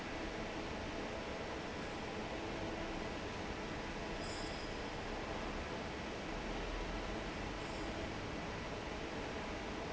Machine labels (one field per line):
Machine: fan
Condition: normal